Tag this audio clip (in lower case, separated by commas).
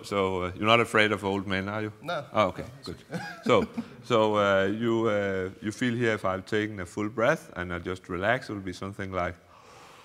speech